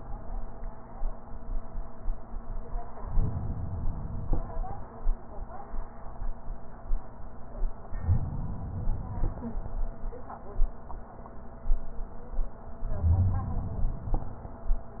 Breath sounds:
3.04-4.45 s: inhalation
7.97-9.38 s: inhalation
12.87-14.27 s: inhalation

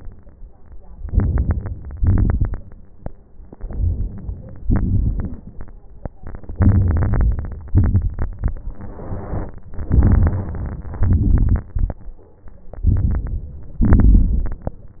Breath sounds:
0.98-1.69 s: inhalation
0.98-1.69 s: crackles
1.92-2.63 s: exhalation
1.92-2.63 s: crackles
3.58-4.45 s: inhalation
3.58-4.45 s: crackles
4.67-5.35 s: crackles
4.67-5.62 s: exhalation
6.56-7.45 s: crackles
6.56-7.63 s: inhalation
7.74-8.32 s: exhalation
7.74-8.32 s: crackles
9.88-10.86 s: crackles
9.90-10.95 s: inhalation
11.02-11.68 s: exhalation
11.04-11.63 s: crackles
12.85-13.72 s: inhalation
12.89-13.49 s: crackles
13.84-14.82 s: exhalation
13.87-14.63 s: crackles

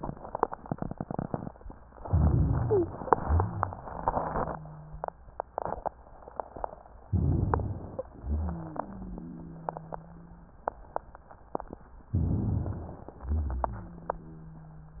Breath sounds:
1.99-3.02 s: inhalation
2.62-2.93 s: wheeze
3.17-5.27 s: wheeze
7.08-8.10 s: inhalation
7.89-8.11 s: wheeze
8.20-10.58 s: wheeze
12.12-13.26 s: inhalation
13.30-15.00 s: wheeze

